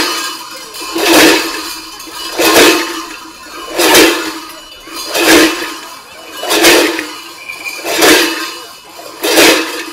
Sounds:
Jingle bell

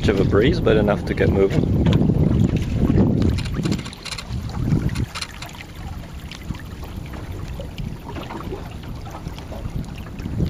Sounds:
Speech

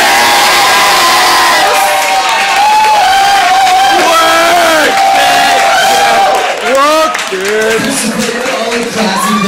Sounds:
inside a large room or hall, Speech

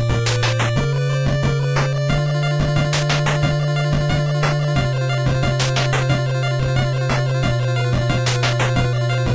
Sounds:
Music, Blues

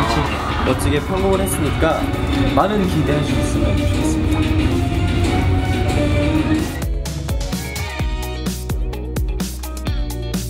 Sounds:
Speech, Music

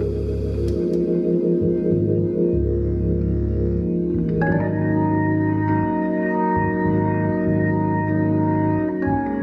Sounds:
playing hammond organ

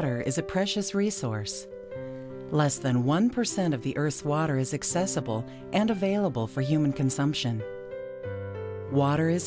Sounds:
Music, Speech

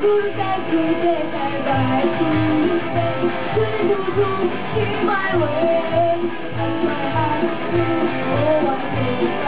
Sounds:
Music

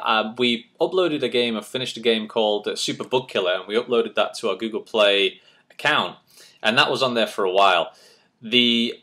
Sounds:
Speech

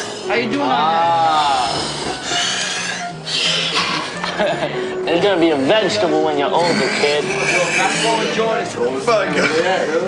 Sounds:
Speech, Music

